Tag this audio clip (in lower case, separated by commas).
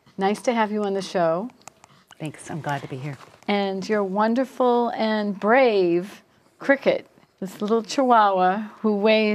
speech